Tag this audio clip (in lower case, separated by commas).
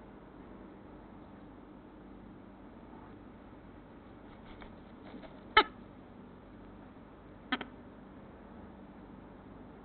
bird